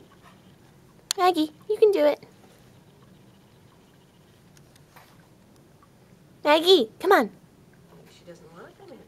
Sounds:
Speech

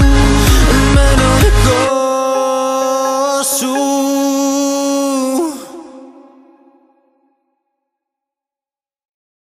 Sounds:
Music

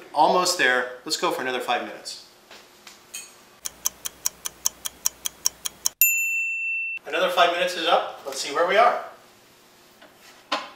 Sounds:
inside a small room, Speech

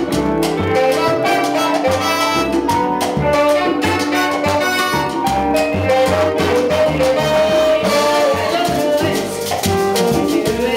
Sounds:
Music, Salsa music

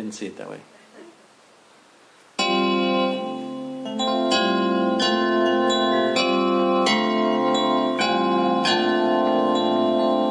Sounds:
Speech, Music, inside a large room or hall

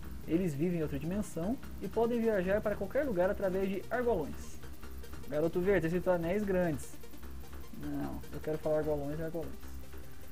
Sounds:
Music, Speech

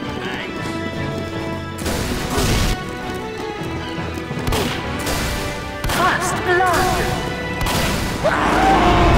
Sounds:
Music, Speech

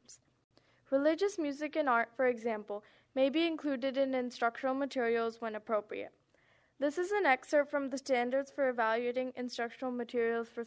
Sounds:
Speech

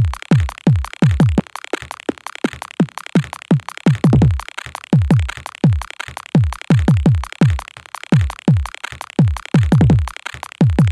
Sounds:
Music

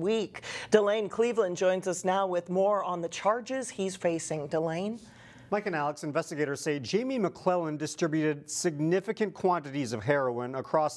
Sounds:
Speech

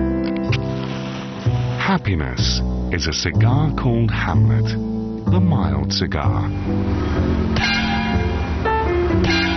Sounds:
Music, Speech

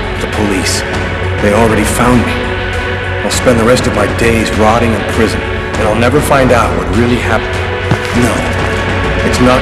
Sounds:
Music, Speech

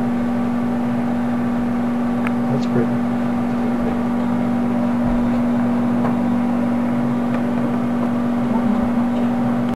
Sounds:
Speech

